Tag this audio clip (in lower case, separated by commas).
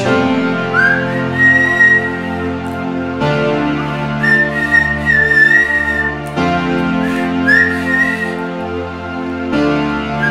music